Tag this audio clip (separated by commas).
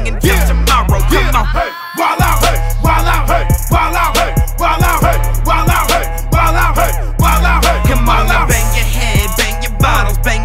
Music